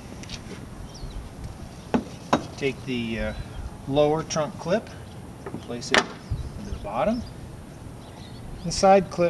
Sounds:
Speech

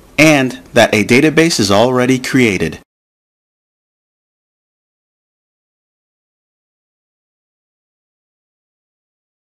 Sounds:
Speech

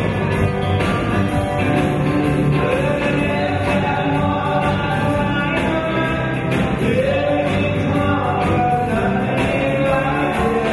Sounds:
Music, Male singing

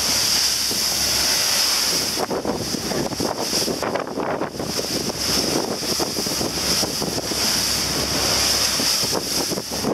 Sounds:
Boat

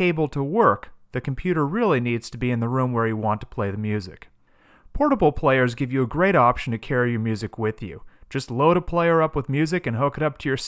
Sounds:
Speech

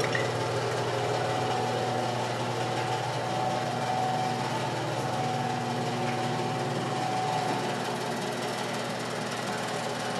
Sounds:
Sewing machine

